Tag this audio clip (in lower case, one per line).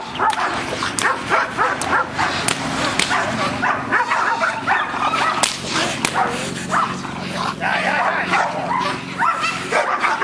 animal
dog
speech